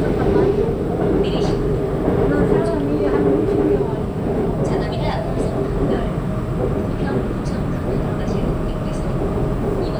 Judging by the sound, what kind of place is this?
subway train